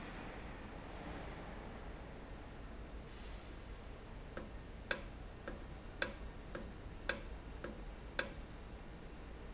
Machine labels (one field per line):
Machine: valve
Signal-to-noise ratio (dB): 6 dB